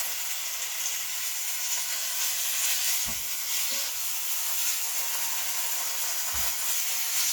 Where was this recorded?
in a kitchen